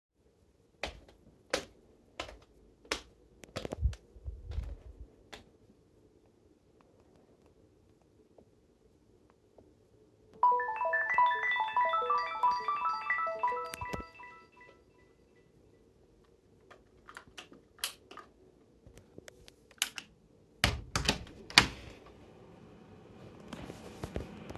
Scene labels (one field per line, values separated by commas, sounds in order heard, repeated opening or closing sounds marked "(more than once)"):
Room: bedroom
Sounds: footsteps, phone ringing, light switch, door